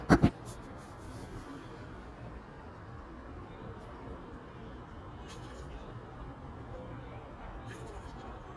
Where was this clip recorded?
in a residential area